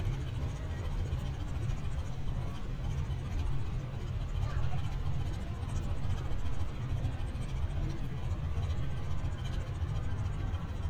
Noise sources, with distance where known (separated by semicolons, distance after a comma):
engine of unclear size, near